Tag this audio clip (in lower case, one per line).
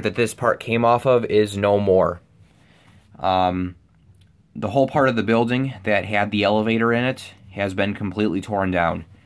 speech